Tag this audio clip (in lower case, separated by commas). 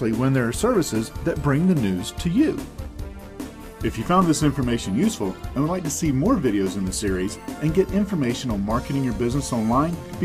music, speech